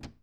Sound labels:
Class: cupboard; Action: closing; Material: wooden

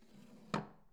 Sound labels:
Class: drawer; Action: closing; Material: wooden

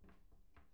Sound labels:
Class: cupboard; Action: opening; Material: wooden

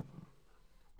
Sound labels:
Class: drawer; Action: opening; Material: wooden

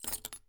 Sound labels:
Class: object falling; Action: being thrown; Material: metal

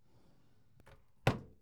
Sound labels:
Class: drawer; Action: closing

